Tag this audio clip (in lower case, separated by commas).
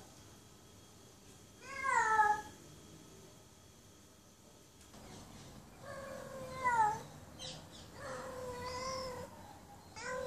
cat caterwauling